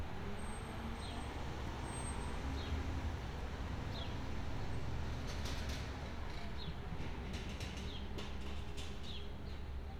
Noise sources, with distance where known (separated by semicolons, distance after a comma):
engine of unclear size